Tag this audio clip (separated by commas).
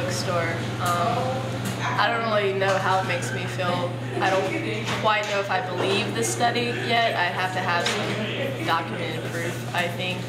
Speech